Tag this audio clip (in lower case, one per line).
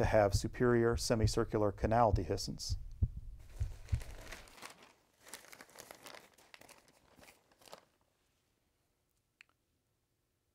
inside a large room or hall
crinkling
speech